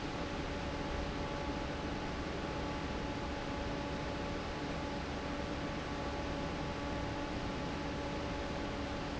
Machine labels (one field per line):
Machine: fan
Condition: normal